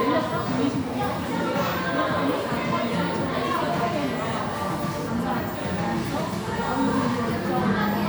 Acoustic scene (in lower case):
crowded indoor space